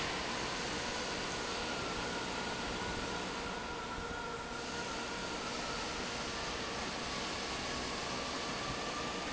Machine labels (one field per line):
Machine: fan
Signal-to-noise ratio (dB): -6 dB